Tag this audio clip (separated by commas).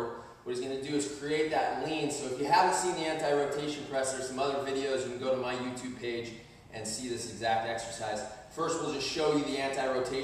Speech